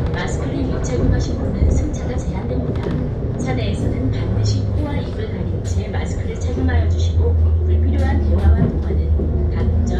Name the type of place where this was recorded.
bus